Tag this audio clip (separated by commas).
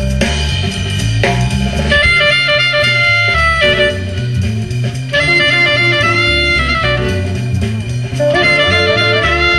Saxophone, Drum kit, Music, Guitar, Percussion, Musical instrument, Drum